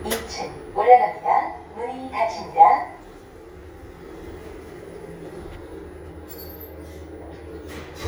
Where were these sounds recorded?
in an elevator